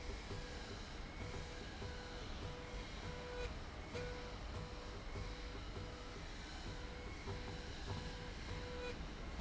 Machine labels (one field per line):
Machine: slide rail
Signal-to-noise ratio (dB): 6 dB